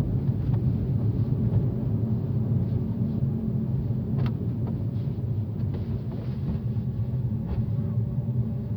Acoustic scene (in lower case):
car